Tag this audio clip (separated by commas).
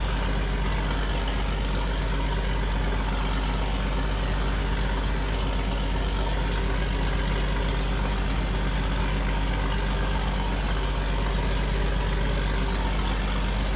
Boat, Vehicle